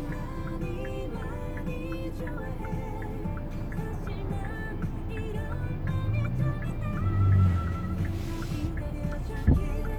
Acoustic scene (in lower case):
car